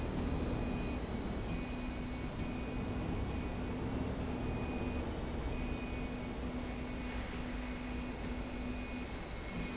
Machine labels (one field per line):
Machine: slide rail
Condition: normal